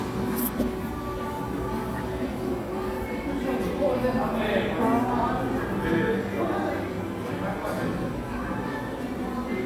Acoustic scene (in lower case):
cafe